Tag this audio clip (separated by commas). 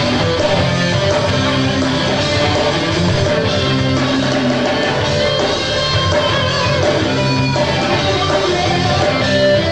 Music